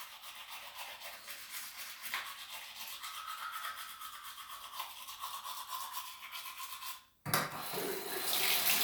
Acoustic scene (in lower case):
restroom